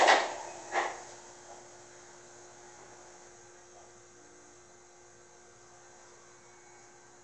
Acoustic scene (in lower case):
subway train